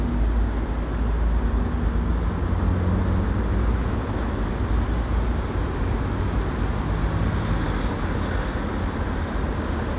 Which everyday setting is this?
street